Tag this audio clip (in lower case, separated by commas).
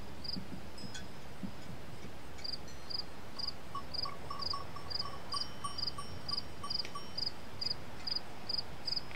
insect, outside, rural or natural